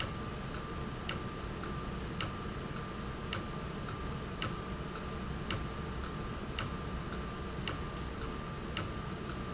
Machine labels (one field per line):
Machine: valve